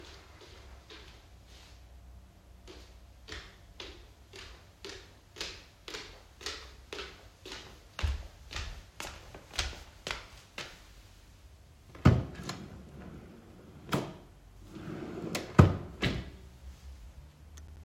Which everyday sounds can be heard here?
footsteps, wardrobe or drawer